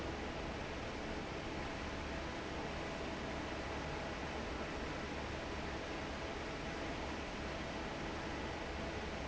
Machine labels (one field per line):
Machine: fan